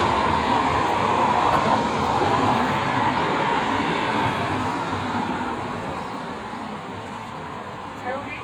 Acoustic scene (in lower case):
street